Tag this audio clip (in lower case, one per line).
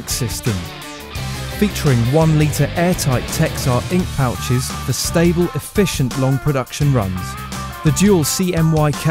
speech
music